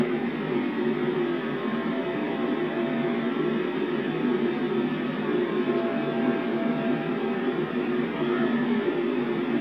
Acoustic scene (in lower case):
subway train